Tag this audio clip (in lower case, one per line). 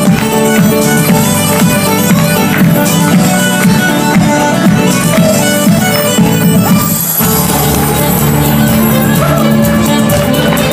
independent music
music
dance music